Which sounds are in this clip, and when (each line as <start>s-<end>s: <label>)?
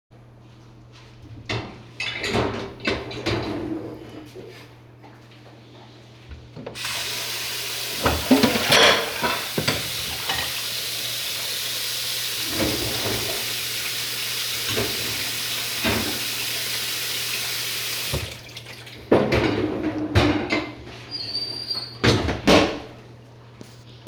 1.4s-3.6s: cutlery and dishes
6.7s-18.3s: running water
7.9s-10.5s: cutlery and dishes
12.5s-13.4s: cutlery and dishes
14.6s-14.9s: cutlery and dishes
15.8s-16.1s: cutlery and dishes
19.1s-20.7s: cutlery and dishes